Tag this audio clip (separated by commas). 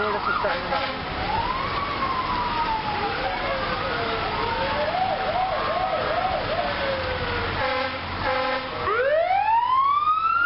Police car (siren), Emergency vehicle, Siren, Ambulance (siren)